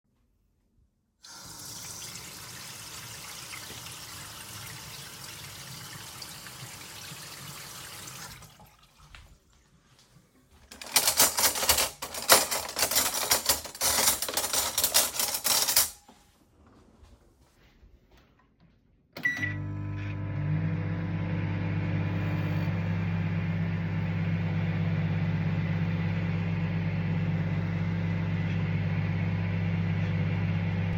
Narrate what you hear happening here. I started the microwave and let it run. While it was running I turned on the tap to rinse a cup. I then picked up a plate and clinked it with a spoon before the microwave finished.